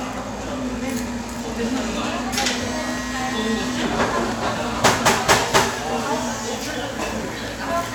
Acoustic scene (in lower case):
cafe